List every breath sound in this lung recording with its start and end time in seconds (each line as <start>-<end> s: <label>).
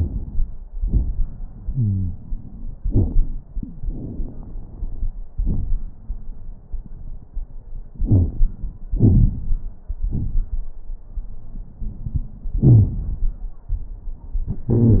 0.00-0.63 s: inhalation
0.00-0.63 s: crackles
0.67-1.30 s: exhalation
0.67-1.30 s: crackles
1.58-2.76 s: inhalation
1.69-2.13 s: wheeze
2.80-3.47 s: exhalation
2.80-3.47 s: crackles
3.82-5.10 s: inhalation
3.82-5.10 s: crackles
5.39-5.92 s: exhalation
5.39-5.92 s: crackles
7.97-8.46 s: inhalation
7.97-8.46 s: crackles
8.87-9.70 s: exhalation
8.87-9.70 s: crackles